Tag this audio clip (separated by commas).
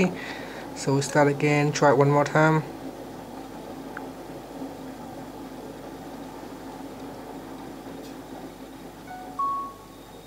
Speech